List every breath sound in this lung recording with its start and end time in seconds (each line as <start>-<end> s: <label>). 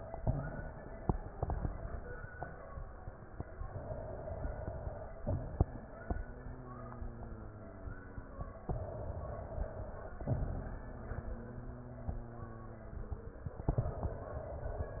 3.57-5.20 s: inhalation
5.24-6.22 s: exhalation
6.22-8.54 s: wheeze
8.67-10.30 s: inhalation
10.28-11.14 s: exhalation
11.14-13.45 s: wheeze
13.66-15.00 s: inhalation